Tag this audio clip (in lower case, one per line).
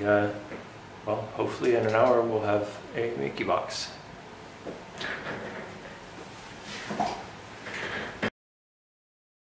speech